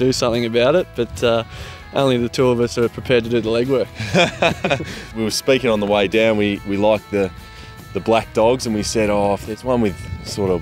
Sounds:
Speech, Music

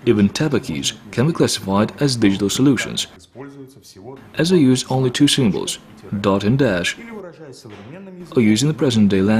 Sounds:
Speech

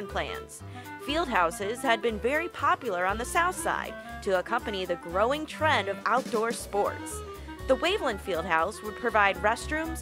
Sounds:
Speech, Music

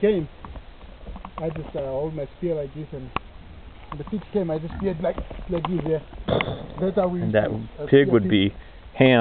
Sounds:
Speech

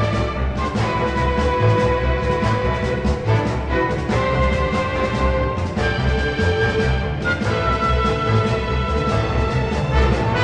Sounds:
Music

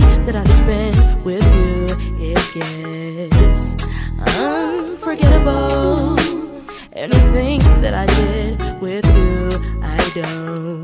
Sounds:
Music

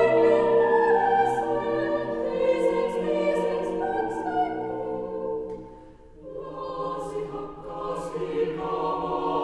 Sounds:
Music, Choir

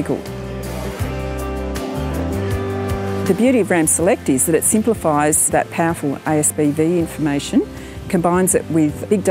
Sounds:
Speech, Music

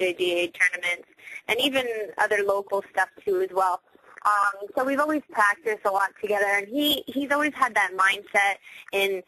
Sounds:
Speech

